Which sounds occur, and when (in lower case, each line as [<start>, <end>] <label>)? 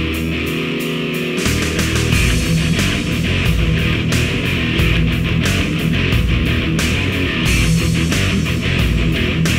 [0.01, 9.55] music